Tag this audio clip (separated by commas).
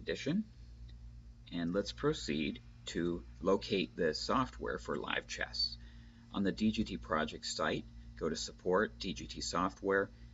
Speech